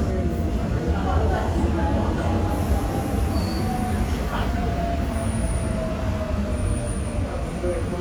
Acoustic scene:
subway station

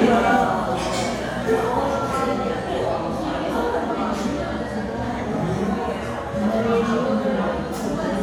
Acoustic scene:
crowded indoor space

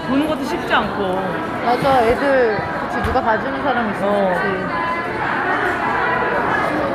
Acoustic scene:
crowded indoor space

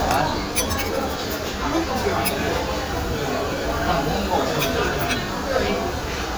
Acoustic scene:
restaurant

